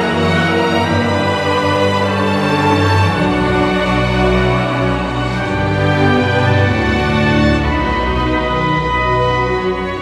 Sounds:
music

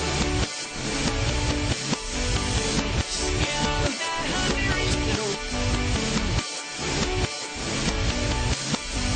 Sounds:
music

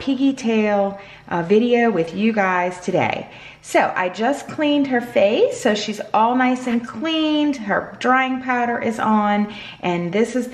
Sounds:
speech

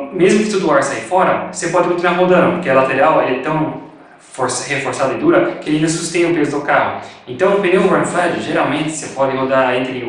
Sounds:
speech

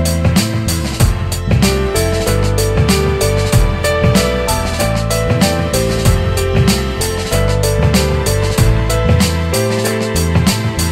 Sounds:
music

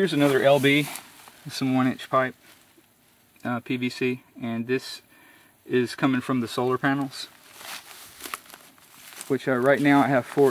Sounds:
speech, rustling leaves

